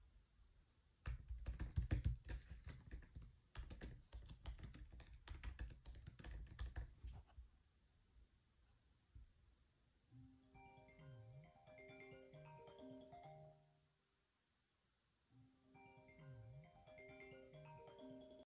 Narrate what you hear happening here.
I was typing on my laptop, then my phone nearby started ringing.